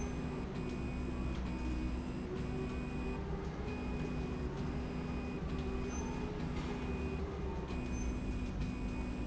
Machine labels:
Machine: slide rail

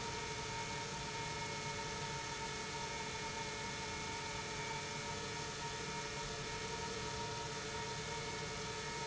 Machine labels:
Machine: pump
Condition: normal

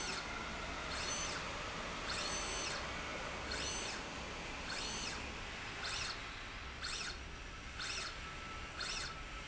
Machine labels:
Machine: slide rail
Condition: normal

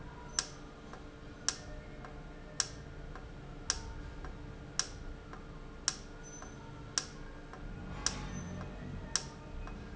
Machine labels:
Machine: valve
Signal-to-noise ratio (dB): 0 dB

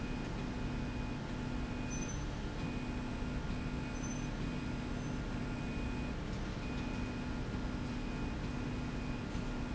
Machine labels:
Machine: slide rail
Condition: normal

